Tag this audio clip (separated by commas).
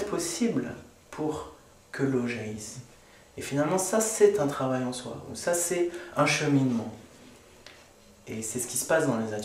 Speech